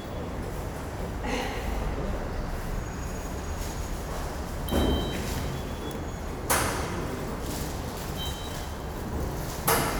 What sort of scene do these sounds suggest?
subway station